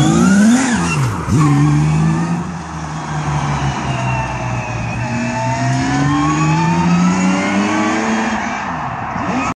Car engine revving and crowds cheering